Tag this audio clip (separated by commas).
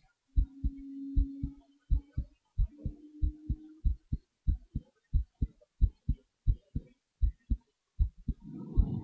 heartbeat